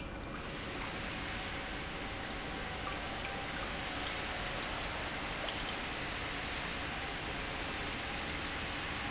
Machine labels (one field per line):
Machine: pump